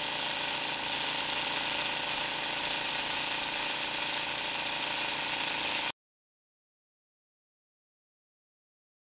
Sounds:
Tools

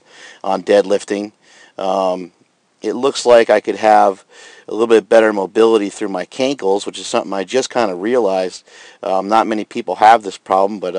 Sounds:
Speech

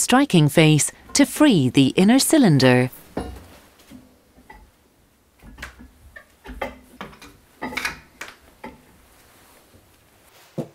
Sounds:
Speech

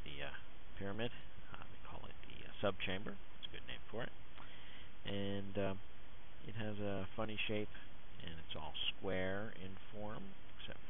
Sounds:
Speech

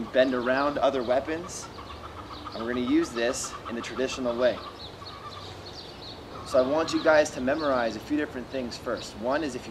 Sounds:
outside, rural or natural, Speech

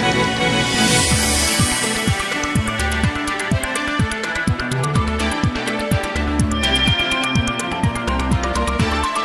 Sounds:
Music

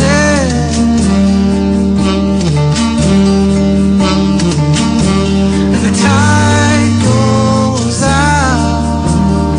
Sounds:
Music, Guitar, Bowed string instrument, Musical instrument

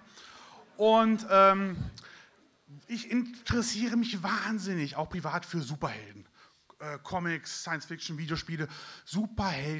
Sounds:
Speech

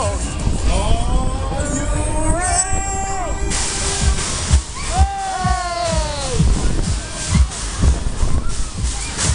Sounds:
Speech, Music

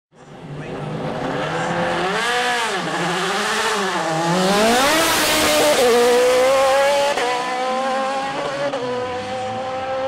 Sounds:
Car, Vehicle, Speech, Tire squeal, auto racing

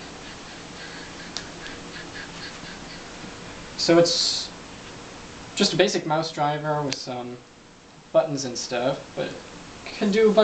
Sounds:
Speech

